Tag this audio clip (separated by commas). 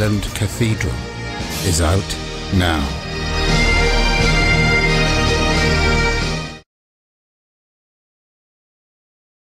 Musical instrument, fiddle, Music, Orchestra